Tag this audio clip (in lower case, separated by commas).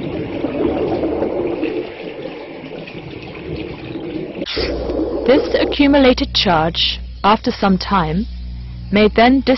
speech